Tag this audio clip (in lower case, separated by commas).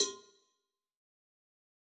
bell, cowbell